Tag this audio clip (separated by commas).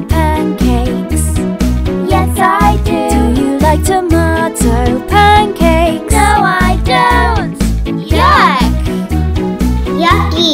child singing